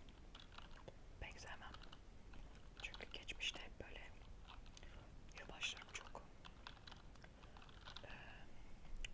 A keyboard is being tapped on and a woman is whispering